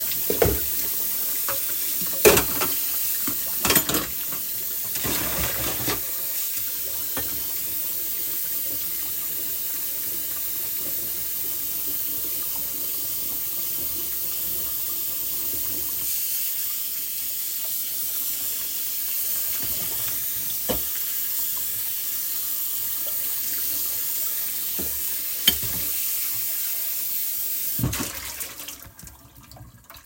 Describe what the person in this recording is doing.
I'm washing the dishes